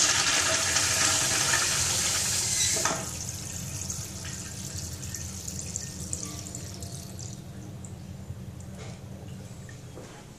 A toilet flushing loudly